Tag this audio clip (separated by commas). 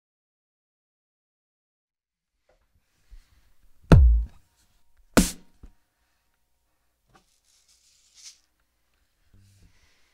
Music, Musical instrument, inside a small room, Silence